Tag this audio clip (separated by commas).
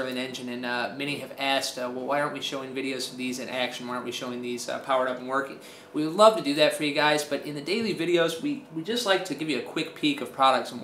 Speech